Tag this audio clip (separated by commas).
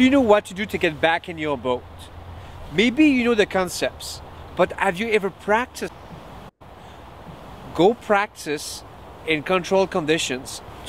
Speech